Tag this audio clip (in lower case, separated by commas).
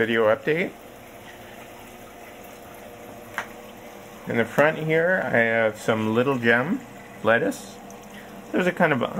inside a small room, speech